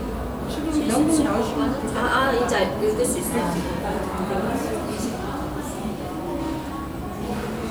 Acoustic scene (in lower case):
cafe